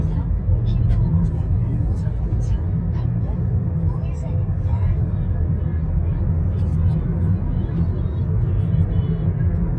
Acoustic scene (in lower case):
car